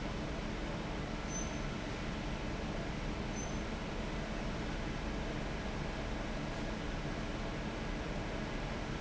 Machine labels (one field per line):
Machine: fan